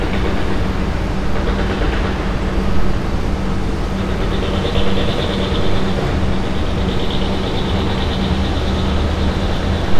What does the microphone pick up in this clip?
unidentified impact machinery